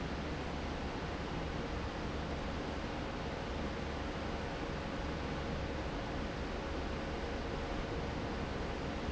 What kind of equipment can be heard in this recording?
fan